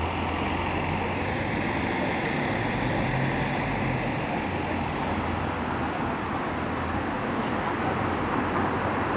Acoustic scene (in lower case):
street